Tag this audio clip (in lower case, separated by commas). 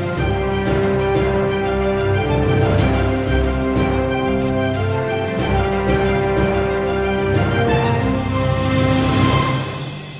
theme music